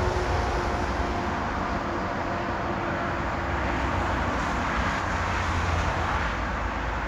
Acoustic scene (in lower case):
street